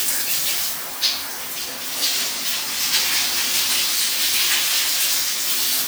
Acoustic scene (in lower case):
restroom